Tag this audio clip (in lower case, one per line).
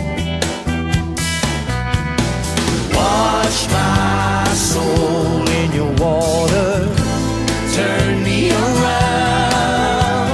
music